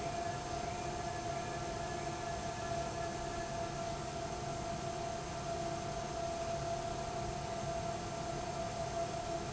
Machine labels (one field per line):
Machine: pump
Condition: abnormal